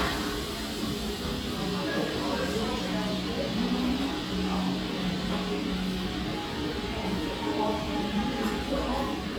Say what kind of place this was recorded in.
restaurant